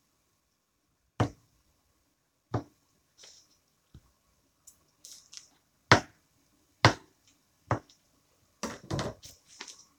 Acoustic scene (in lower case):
kitchen